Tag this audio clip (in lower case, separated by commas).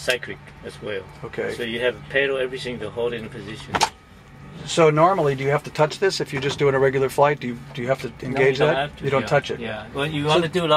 speech